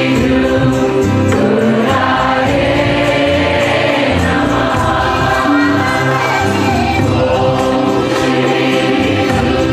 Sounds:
music
mantra

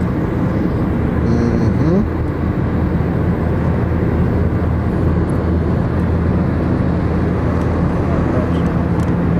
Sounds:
speech
car
vehicle

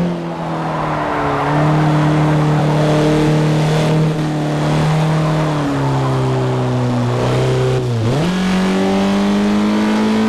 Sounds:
skidding
car
motor vehicle (road)
vehicle

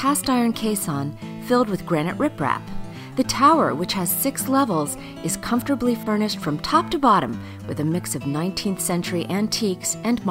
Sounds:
music
speech

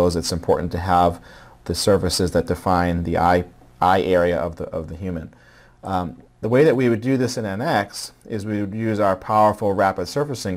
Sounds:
speech

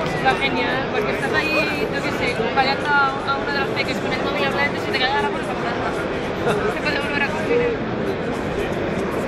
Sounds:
speech

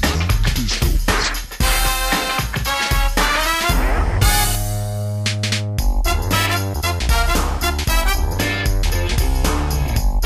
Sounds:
music

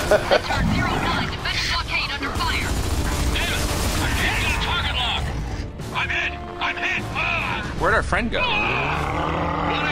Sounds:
music
speech

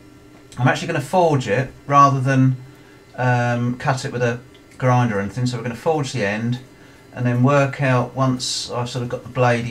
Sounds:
speech

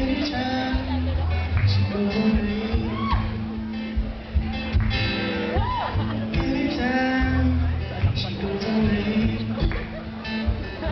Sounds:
inside a large room or hall
speech
singing
music

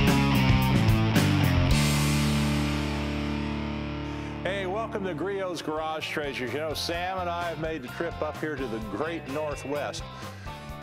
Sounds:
music
speech

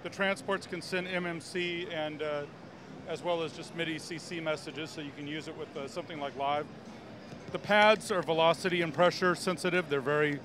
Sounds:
speech

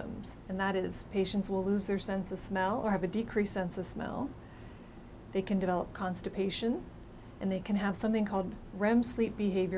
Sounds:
speech

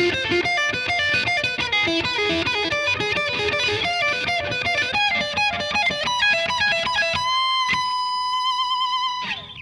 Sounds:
music
musical instrument

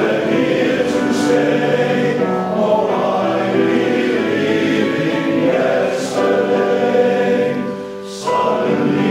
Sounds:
man speaking
music

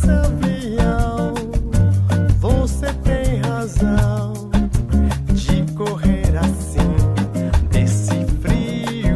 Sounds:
music

